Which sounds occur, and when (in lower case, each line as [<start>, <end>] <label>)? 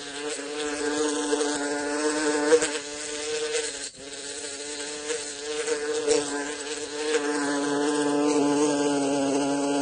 [0.00, 9.81] buzz